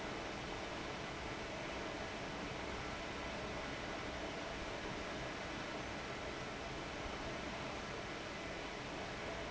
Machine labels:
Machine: fan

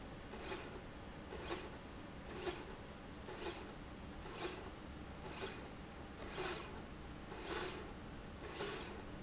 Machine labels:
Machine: slide rail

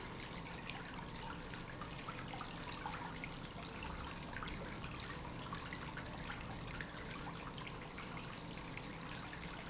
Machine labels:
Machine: pump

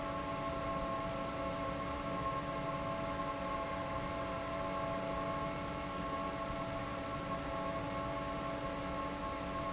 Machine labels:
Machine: fan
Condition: normal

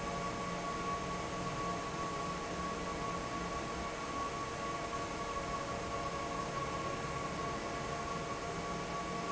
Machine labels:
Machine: fan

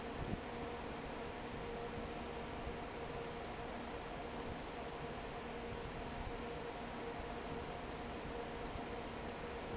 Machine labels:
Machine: fan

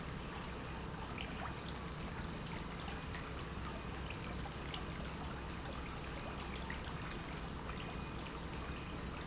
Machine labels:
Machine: pump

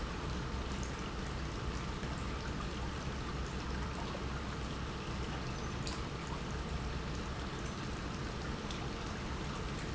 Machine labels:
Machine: pump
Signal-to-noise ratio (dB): -6 dB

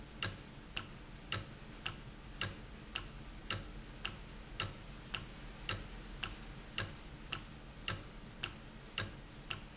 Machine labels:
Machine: valve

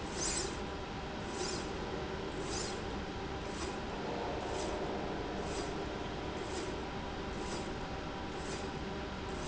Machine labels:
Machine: slide rail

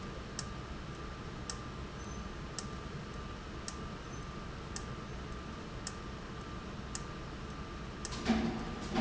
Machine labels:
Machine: valve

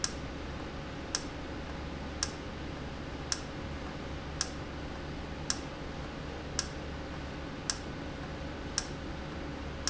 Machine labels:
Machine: valve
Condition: normal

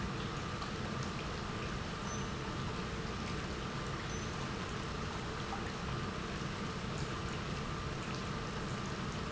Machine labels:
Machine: pump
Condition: normal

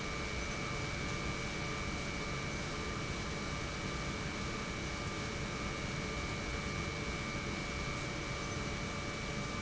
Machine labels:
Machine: pump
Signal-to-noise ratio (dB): -6 dB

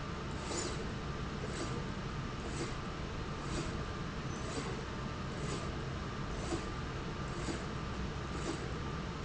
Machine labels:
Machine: slide rail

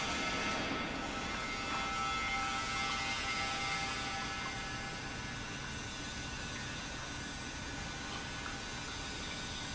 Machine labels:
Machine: pump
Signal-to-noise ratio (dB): -6 dB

